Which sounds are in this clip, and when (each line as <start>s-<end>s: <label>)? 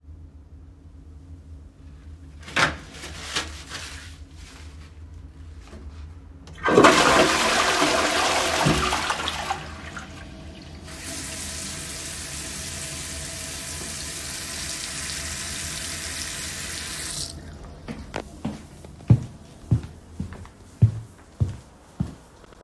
2.4s-3.8s: door
6.5s-11.0s: toilet flushing
10.8s-17.5s: running water
17.9s-22.3s: footsteps